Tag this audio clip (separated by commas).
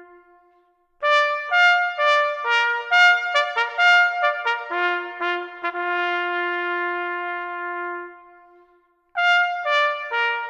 Music